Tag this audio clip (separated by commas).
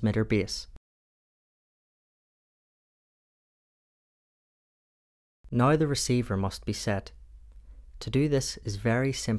Speech